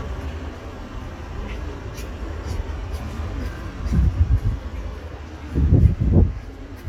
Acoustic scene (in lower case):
street